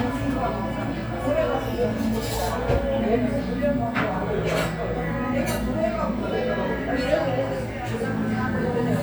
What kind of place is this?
cafe